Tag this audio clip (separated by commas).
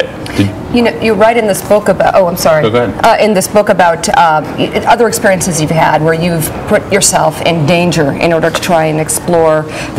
inside a large room or hall, Speech